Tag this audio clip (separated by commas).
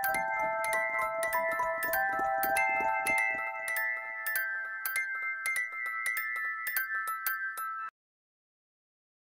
Glockenspiel, Music